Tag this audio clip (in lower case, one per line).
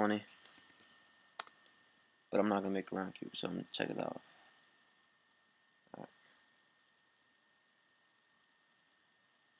speech